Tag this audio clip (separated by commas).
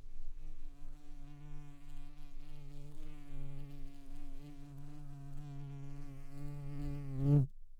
Wild animals, Insect, Animal, Buzz